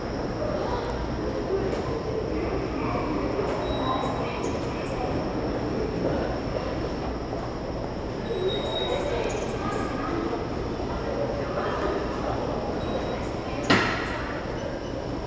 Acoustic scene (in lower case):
subway station